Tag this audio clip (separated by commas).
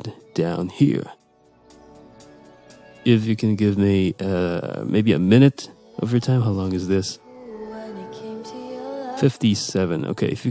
Speech, Music